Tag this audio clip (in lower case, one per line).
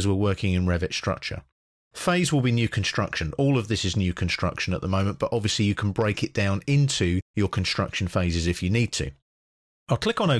speech